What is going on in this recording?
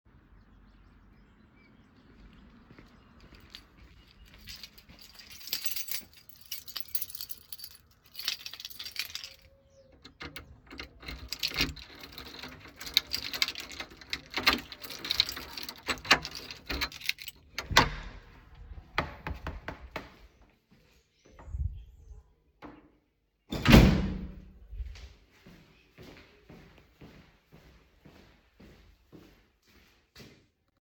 I went to my front housedoor, grabbed my keys and unlocked the door. Then I opened the door and got into my house. The door fell into its lock again. I carried my phone with me.